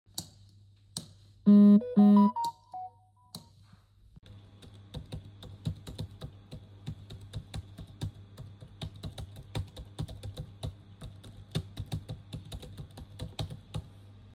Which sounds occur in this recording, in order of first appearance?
light switch, phone ringing, keyboard typing